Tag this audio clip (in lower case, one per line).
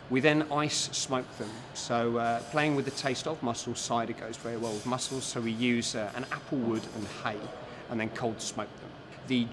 speech